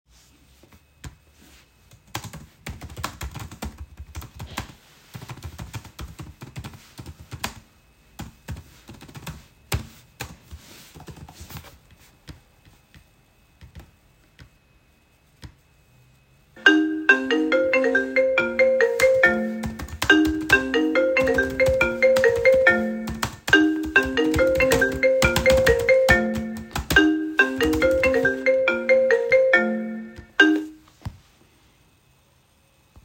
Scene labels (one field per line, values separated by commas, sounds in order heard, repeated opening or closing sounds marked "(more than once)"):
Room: office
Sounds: keyboard typing, phone ringing